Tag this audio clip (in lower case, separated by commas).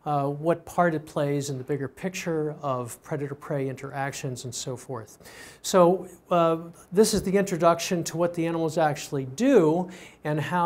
speech